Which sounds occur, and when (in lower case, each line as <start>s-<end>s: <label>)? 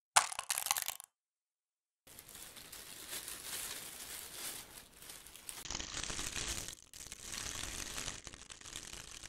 0.1s-1.1s: crushing
2.0s-9.2s: crinkling